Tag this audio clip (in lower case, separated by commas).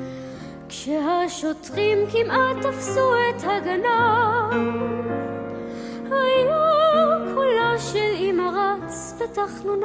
child singing, lullaby, male singing, music